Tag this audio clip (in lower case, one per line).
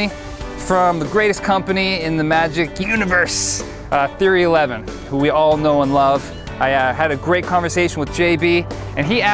music
speech